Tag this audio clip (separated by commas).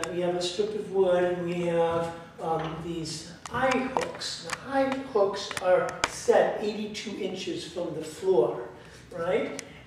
Speech, Tap